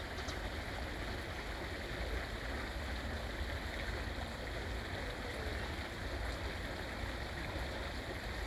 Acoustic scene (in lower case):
park